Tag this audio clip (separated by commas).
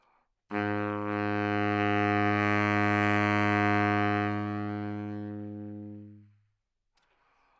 Music, Musical instrument, Wind instrument